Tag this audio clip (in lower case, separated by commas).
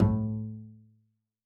musical instrument, music, bowed string instrument